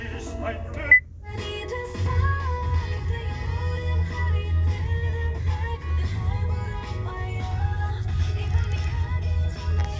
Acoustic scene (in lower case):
car